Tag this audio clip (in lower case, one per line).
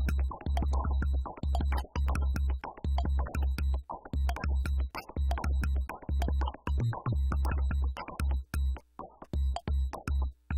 music